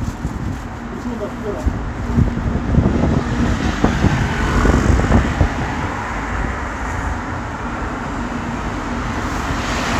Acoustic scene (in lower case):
street